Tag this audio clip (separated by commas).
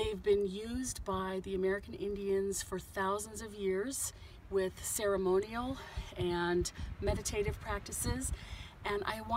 Speech